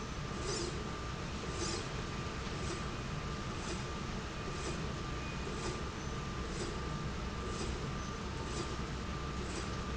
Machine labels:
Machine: slide rail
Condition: normal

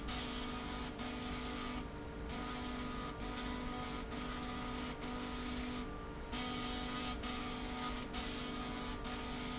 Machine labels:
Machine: slide rail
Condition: abnormal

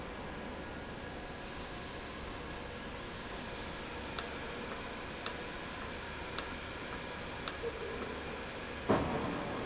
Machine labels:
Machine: valve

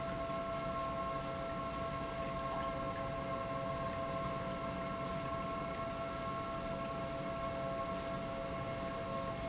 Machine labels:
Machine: pump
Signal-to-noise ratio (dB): -6 dB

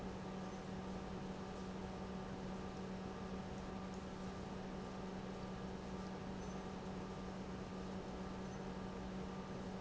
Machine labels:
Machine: pump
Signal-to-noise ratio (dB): 6 dB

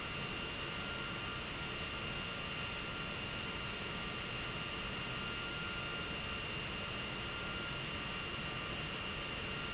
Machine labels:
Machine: pump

